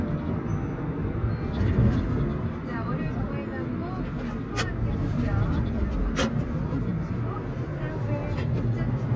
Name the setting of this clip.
car